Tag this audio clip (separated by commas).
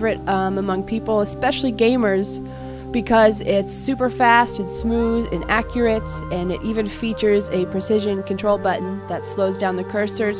Speech, Music